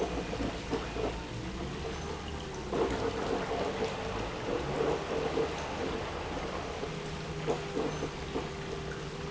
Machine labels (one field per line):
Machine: pump